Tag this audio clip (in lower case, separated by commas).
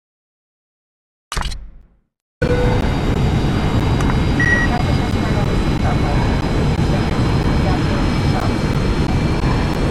airplane